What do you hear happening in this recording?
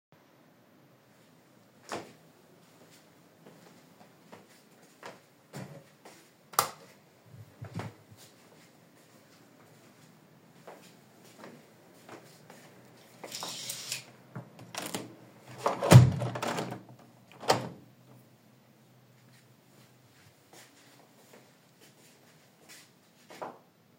I woke up, pulled the curtains and closed the window because it was getting cold.